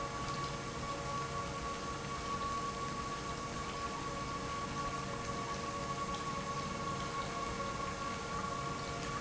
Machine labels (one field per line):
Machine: pump